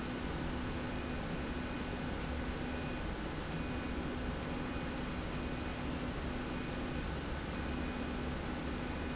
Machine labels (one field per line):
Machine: slide rail